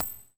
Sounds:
Coin (dropping), Domestic sounds

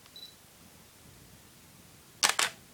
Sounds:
Mechanisms, Camera

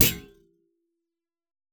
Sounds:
thud

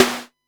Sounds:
Musical instrument, Drum, Percussion, Snare drum, Music

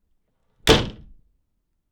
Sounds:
home sounds, Door, Slam

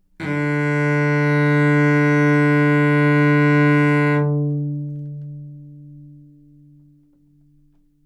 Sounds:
Bowed string instrument, Musical instrument, Music

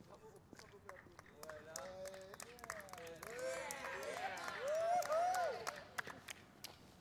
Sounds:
Cheering, Human group actions

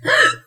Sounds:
Respiratory sounds, Breathing

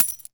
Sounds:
Domestic sounds, Coin (dropping)

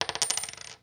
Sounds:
home sounds, Coin (dropping)

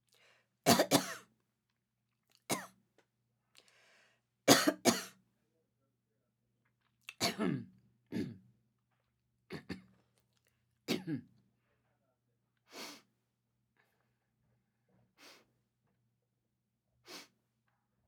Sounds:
Cough, Respiratory sounds

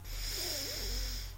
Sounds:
Breathing, Respiratory sounds

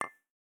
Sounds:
Glass, clink

